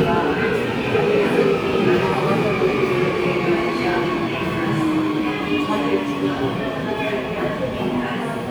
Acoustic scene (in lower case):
subway station